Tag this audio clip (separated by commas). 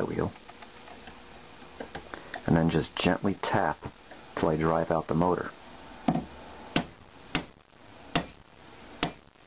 Tools, Speech